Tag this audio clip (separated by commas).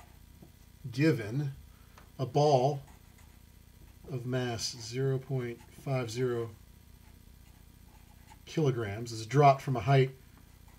Speech